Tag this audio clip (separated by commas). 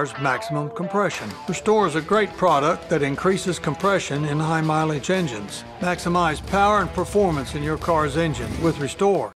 Speech, Music